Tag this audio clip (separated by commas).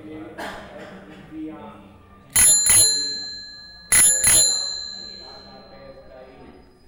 Bicycle, Alarm, Vehicle, Bicycle bell, Bell